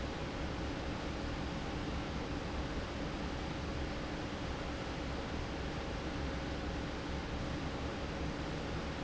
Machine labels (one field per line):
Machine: fan